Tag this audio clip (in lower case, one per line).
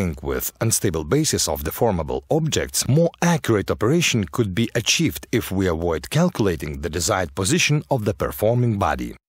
speech